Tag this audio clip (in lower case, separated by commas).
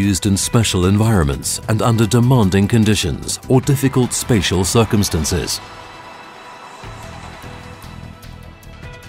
speech, music